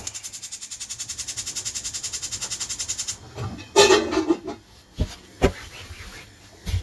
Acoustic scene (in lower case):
kitchen